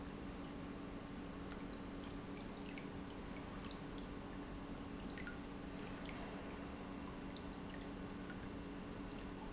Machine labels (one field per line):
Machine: pump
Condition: normal